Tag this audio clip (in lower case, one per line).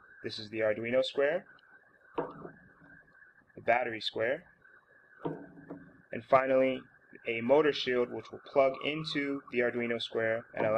speech